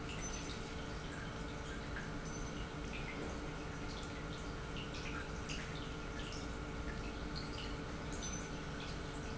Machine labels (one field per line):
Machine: pump